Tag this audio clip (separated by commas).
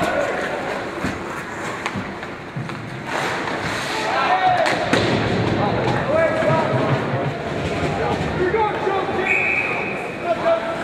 Speech